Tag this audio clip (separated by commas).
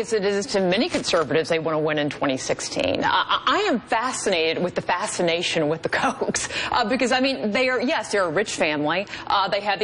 Speech